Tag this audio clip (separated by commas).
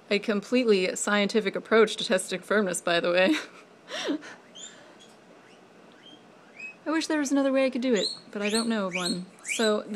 Speech, inside a small room